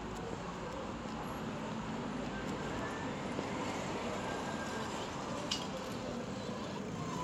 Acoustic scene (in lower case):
street